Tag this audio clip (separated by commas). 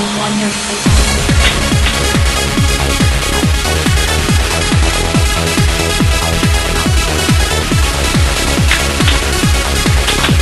Music